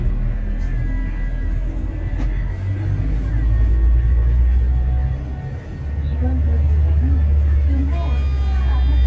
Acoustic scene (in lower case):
bus